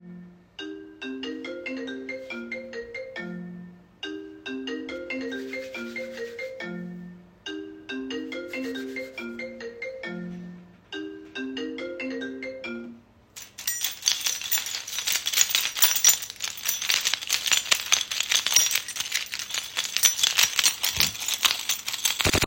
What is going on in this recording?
I jiggled my keychain and then my phone started ringing. The sound of the keychain jingling and the phone ringing were captured in the recording without any background noise.